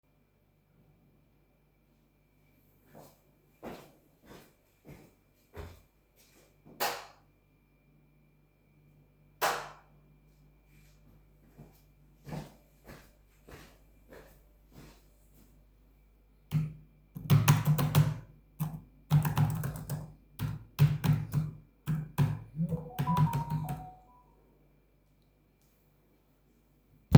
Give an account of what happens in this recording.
Person walks to the light switch. Turns it on and off. then goes to a laptop and types something, while getting a message.